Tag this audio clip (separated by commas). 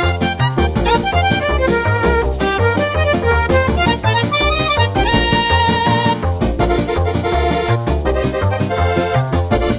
Video game music, Music